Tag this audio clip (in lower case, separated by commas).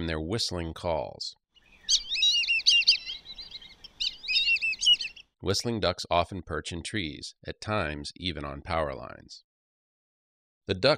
bird, speech, bird song